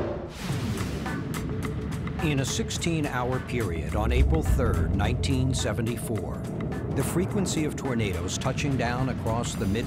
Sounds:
tornado roaring

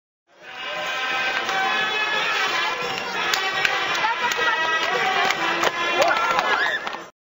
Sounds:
music, speech, horse, clip-clop

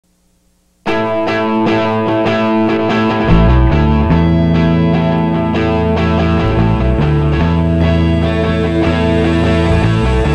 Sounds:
distortion, music

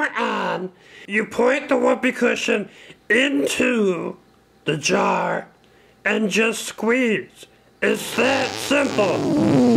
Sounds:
fart, speech

